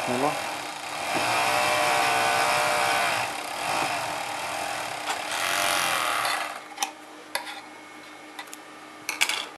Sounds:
speech
tools

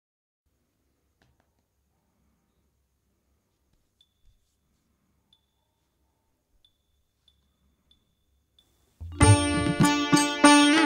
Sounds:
music

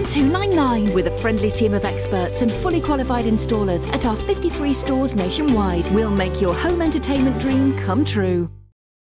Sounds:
music
speech

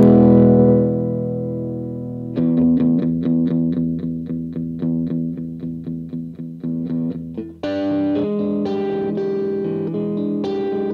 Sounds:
plucked string instrument
guitar
music
effects unit

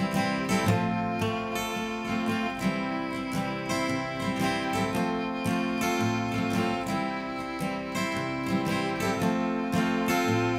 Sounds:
music

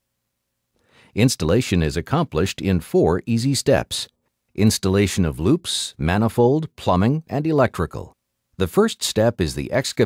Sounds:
speech

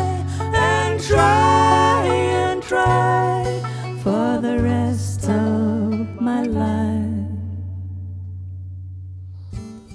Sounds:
singing
guitar
music

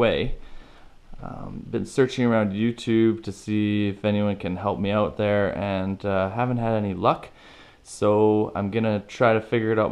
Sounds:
speech

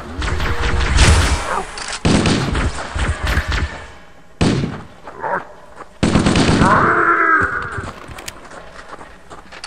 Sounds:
outside, rural or natural

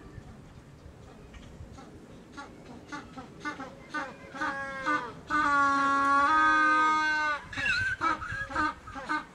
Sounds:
penguins braying

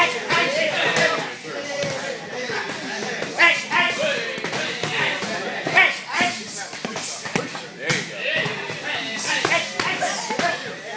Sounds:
speech

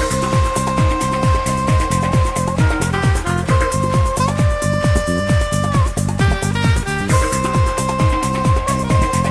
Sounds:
music
musical instrument

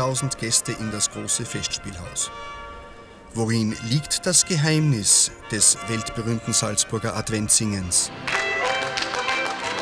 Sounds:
music
speech

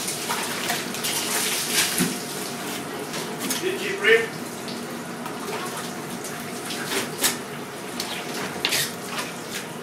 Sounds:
water

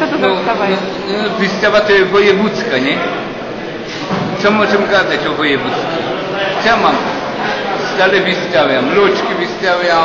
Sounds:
speech
inside a public space

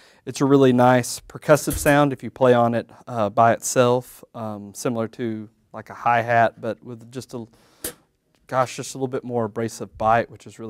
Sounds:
speech

